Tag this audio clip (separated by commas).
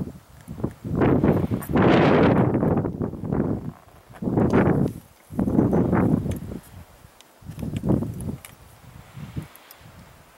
outside, rural or natural